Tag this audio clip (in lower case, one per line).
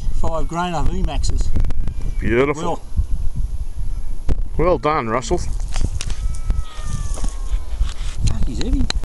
speech